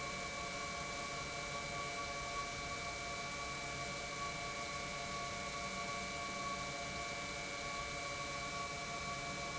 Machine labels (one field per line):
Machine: pump